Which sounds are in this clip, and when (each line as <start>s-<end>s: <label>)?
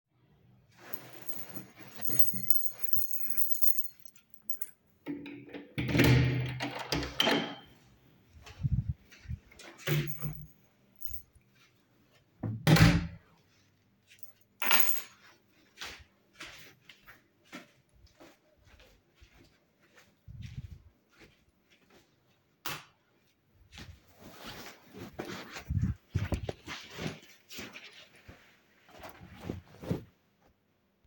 0.8s-4.9s: keys
5.4s-7.7s: door
10.8s-11.3s: keys
12.3s-13.4s: door
14.3s-15.3s: keys
15.6s-22.2s: footsteps
22.5s-23.0s: light switch